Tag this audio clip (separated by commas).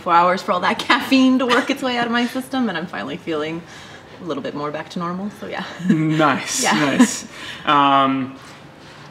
Speech